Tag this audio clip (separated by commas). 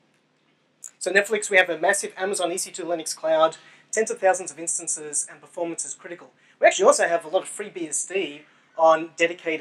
Speech